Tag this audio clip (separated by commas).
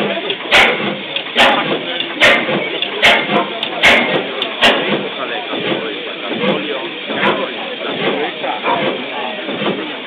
Speech, Engine